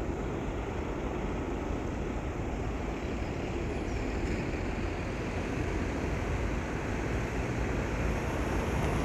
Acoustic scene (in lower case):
street